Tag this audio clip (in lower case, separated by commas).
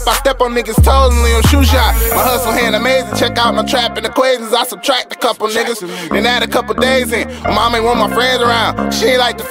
music